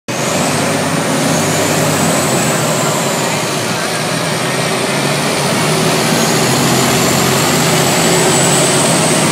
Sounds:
vehicle

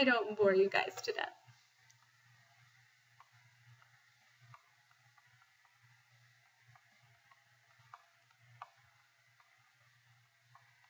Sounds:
speech

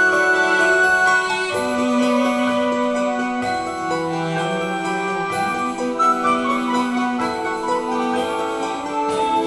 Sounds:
music

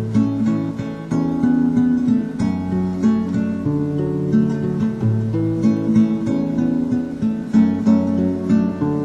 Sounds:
musical instrument, music, plucked string instrument, guitar

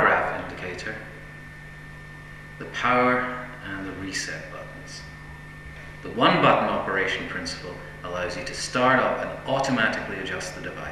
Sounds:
speech

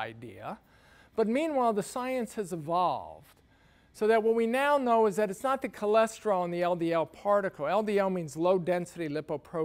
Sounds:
speech

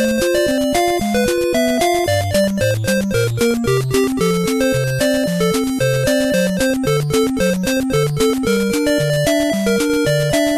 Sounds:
music

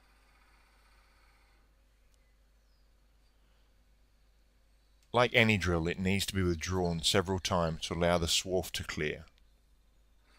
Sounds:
speech

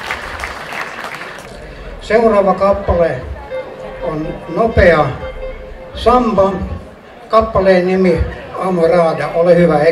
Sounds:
speech

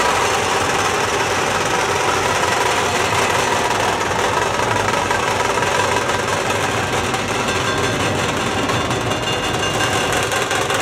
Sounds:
outside, rural or natural, music

